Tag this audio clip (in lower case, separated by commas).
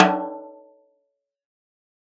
music, drum, snare drum, percussion, musical instrument